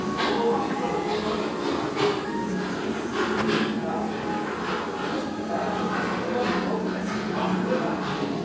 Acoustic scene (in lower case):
restaurant